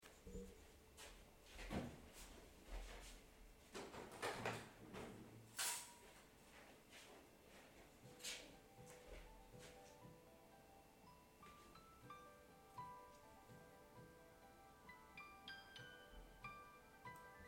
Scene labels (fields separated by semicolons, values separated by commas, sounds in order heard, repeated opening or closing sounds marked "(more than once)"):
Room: living room; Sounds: window, phone ringing